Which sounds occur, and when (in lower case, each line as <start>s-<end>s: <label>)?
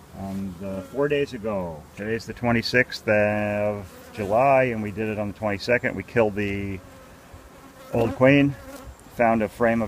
0.0s-9.8s: bee or wasp
0.1s-1.8s: male speech
1.9s-3.8s: male speech
4.2s-6.8s: male speech
7.3s-7.5s: generic impact sounds
7.8s-8.6s: male speech
7.9s-8.1s: generic impact sounds
8.6s-9.0s: generic impact sounds
9.1s-9.8s: male speech